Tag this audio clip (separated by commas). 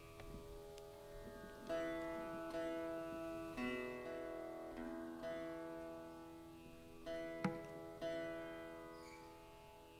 Music, Classical music, Sitar, Bowed string instrument, Musical instrument